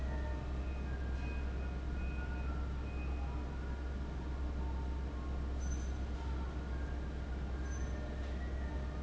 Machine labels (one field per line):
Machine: fan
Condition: abnormal